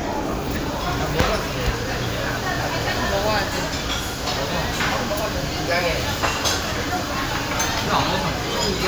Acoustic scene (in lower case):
crowded indoor space